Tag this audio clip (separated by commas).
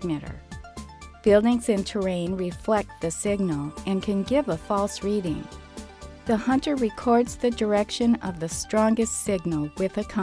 Speech, Music